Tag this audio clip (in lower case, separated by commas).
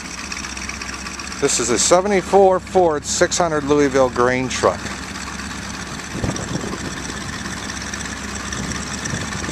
vehicle, speech, truck